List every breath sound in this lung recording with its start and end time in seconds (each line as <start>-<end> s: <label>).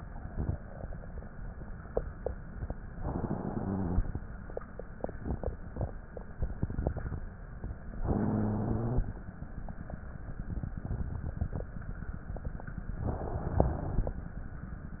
2.91-4.19 s: inhalation
7.93-9.12 s: inhalation
13.00-14.19 s: inhalation
13.00-14.19 s: crackles